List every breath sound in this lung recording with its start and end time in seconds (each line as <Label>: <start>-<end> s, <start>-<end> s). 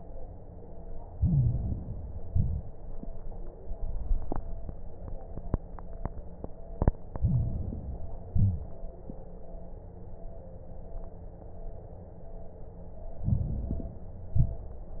Inhalation: 1.10-2.20 s, 7.14-8.24 s, 13.19-14.29 s
Exhalation: 2.24-2.77 s, 8.28-8.81 s, 14.35-14.88 s
Crackles: 1.10-2.20 s, 2.24-2.77 s, 7.14-8.24 s, 8.28-8.81 s, 13.19-14.29 s, 14.35-14.88 s